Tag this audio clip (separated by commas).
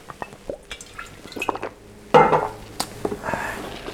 Liquid